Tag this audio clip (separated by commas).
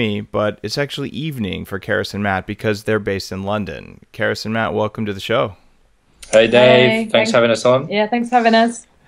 Speech